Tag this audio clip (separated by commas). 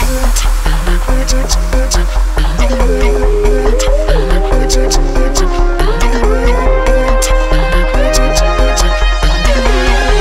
Dubstep, Music